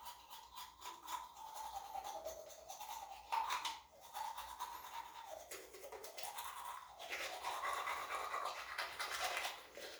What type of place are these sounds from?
restroom